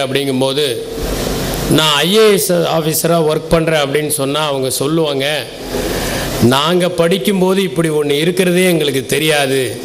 A man delivers a speech